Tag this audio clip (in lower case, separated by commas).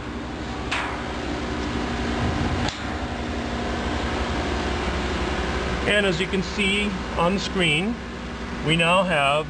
speech, inside a large room or hall